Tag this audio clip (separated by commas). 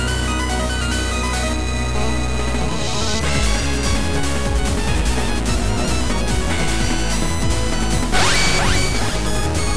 Music